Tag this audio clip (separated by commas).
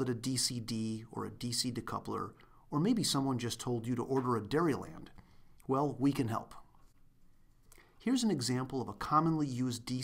Speech, monologue